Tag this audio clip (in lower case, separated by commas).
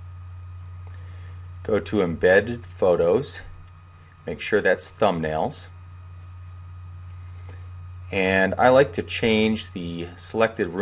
speech